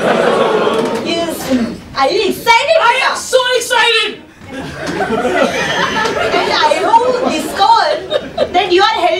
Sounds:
Speech

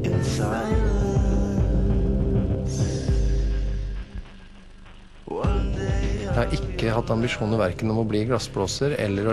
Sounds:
Speech, Music

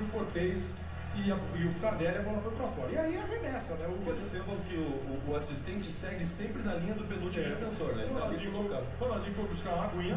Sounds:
Speech, Music

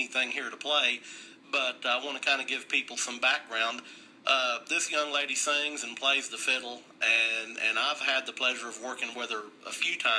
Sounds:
Speech, Radio

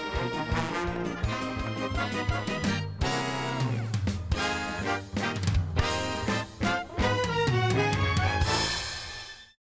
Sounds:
Music

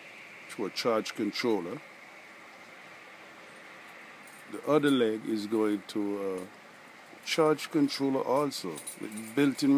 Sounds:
Speech

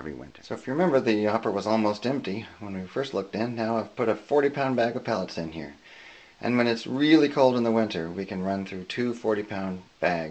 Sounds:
inside a small room, Speech

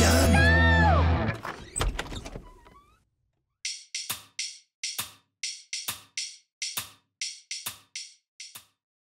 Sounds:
Music

